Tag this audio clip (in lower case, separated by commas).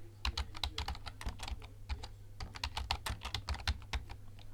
typing, computer keyboard, home sounds